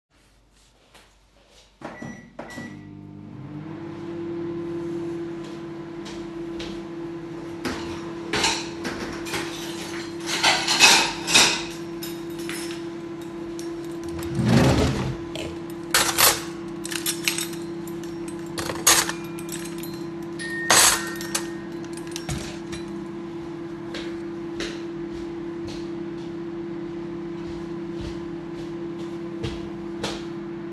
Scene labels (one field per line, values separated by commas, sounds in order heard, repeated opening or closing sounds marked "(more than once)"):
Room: kitchen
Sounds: footsteps, microwave, cutlery and dishes, wardrobe or drawer, bell ringing